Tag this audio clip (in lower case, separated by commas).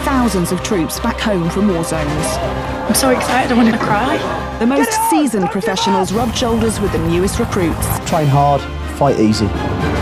music, speech